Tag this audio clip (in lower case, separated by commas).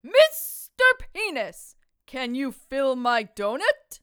yell, human voice, shout